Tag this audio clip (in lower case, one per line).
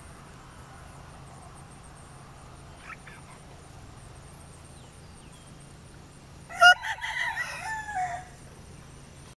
chicken crowing
animal
cock-a-doodle-doo